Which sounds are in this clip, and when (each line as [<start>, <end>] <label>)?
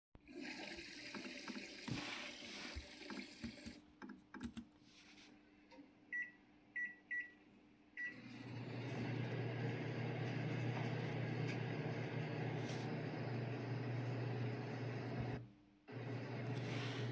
[0.28, 4.35] toilet flushing
[4.55, 17.11] microwave